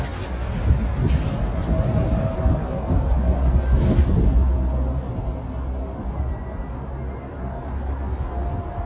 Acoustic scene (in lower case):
street